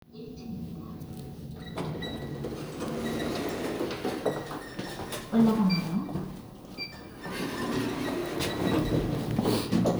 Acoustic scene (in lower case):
elevator